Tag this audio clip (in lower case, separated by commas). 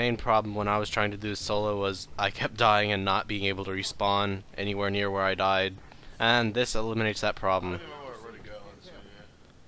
speech